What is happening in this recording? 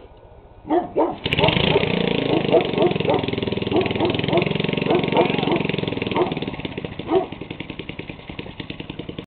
A dog starts barking before the engine starts